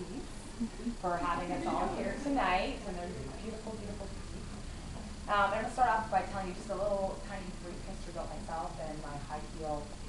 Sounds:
speech

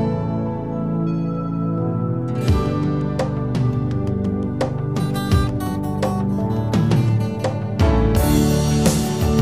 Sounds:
new-age music, music

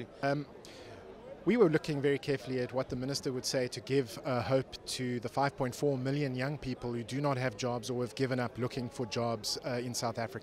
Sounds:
man speaking, speech

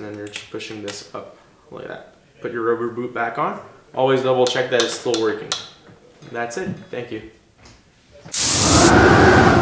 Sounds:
speech, music

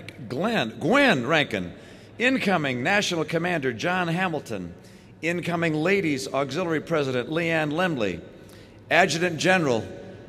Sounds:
male speech, narration, speech

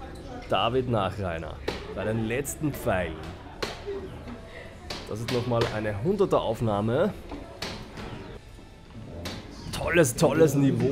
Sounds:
playing darts

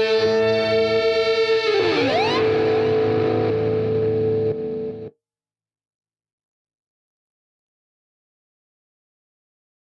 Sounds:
effects unit, silence, music

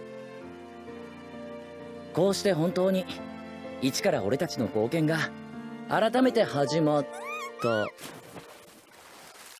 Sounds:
music, speech

